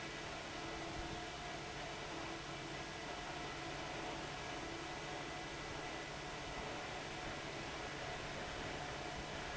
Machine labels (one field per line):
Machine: fan